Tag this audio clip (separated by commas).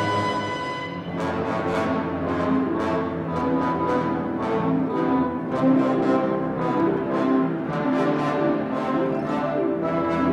French horn